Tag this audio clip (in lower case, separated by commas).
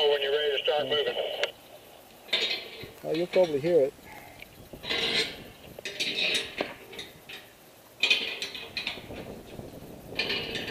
speech